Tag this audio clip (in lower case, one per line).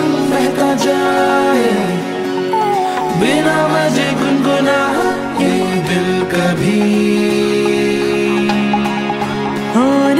theme music
music
happy music